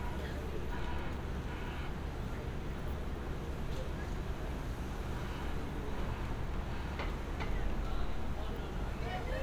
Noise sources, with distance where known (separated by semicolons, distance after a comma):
person or small group talking